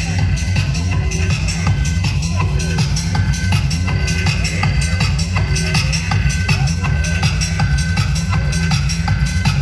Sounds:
Music, Speech

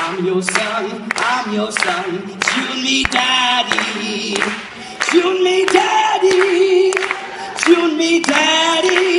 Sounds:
Male singing

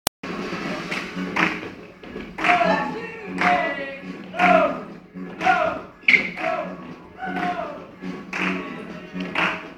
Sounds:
Music

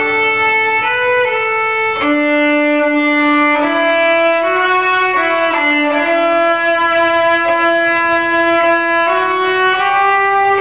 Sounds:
Music, Violin, Musical instrument

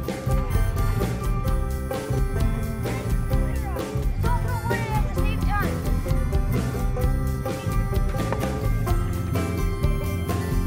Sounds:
Speech, Music

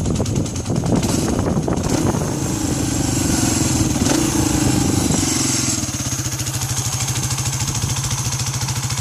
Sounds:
Vehicle, revving

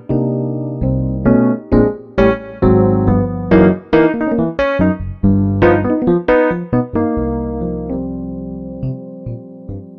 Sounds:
Music, Keyboard (musical), Musical instrument, Piano, playing piano, Electric piano

